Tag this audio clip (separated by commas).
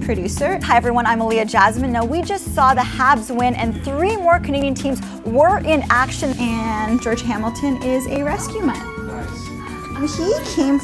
Music, Speech